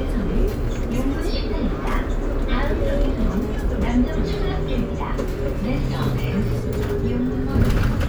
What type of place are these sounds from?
bus